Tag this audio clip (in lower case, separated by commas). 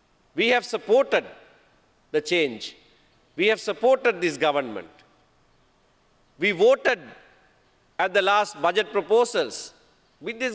man speaking, speech